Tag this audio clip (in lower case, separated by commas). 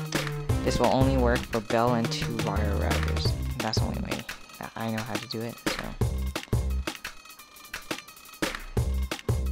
music, speech